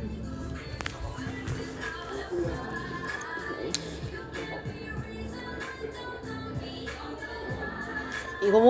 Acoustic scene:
cafe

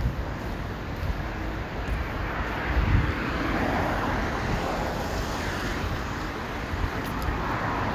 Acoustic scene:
street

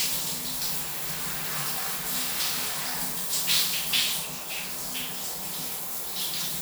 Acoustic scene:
restroom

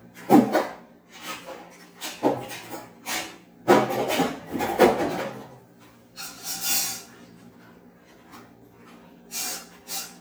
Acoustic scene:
kitchen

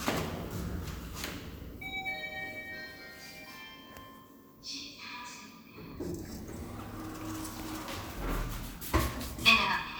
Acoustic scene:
elevator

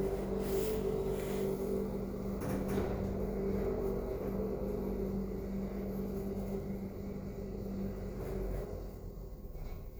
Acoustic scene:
elevator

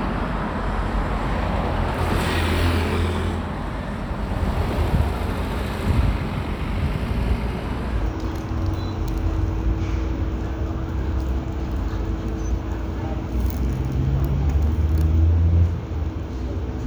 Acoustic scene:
residential area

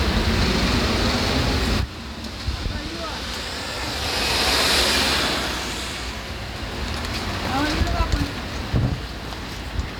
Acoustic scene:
street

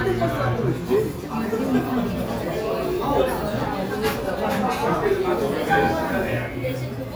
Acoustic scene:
restaurant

